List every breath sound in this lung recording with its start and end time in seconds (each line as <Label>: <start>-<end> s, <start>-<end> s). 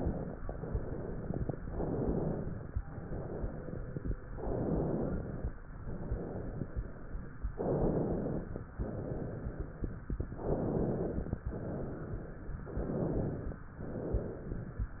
Inhalation: 0.00-0.34 s, 1.71-2.75 s, 4.34-5.51 s, 7.54-8.60 s, 10.18-11.36 s, 12.71-13.61 s
Exhalation: 0.44-1.50 s, 2.92-4.15 s, 5.85-7.34 s, 8.81-9.94 s, 11.50-12.63 s, 13.83-14.91 s